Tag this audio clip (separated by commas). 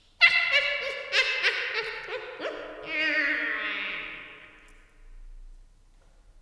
Human voice, Laughter